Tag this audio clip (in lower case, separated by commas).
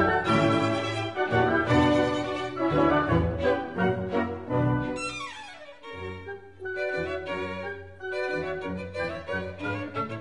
fiddle, musical instrument, music